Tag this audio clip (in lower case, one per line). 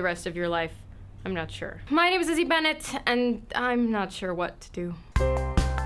speech